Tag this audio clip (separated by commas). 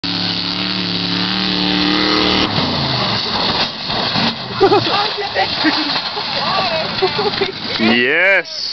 Car, Vehicle, Speech